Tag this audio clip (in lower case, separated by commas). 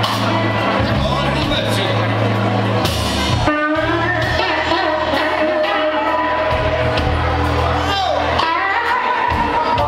singing, music